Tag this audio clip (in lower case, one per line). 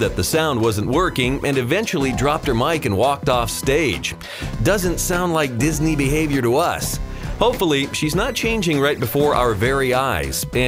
music
speech